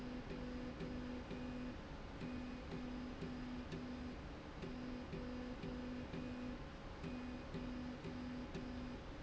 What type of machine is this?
slide rail